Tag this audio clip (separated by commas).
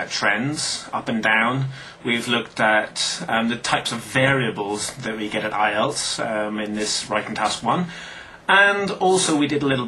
Speech